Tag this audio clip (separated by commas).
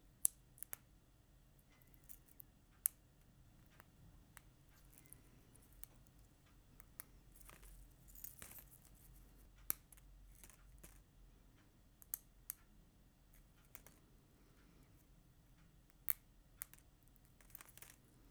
Crackle, Crack